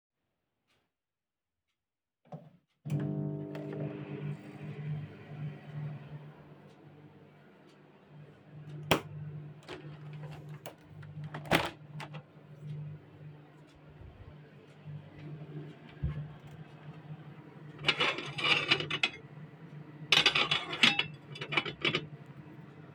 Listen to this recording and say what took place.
I turned on the microwave. I went to the window and opened it. Then I moved dishes from the table.